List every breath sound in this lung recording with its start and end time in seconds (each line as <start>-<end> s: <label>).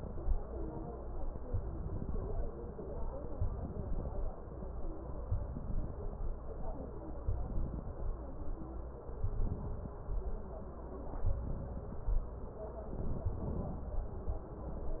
1.51-2.41 s: inhalation
3.35-4.25 s: inhalation
5.41-6.31 s: inhalation
7.25-8.15 s: inhalation
9.14-10.04 s: inhalation
11.27-12.16 s: inhalation
13.04-13.93 s: inhalation